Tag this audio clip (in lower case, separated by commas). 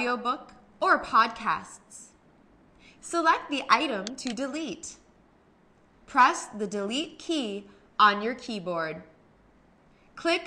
speech